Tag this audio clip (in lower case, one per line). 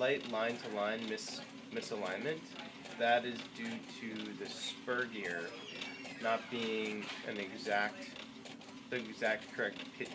printer
speech